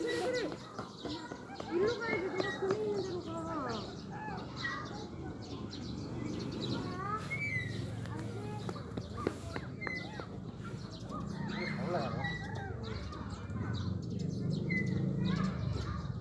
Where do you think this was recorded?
in a residential area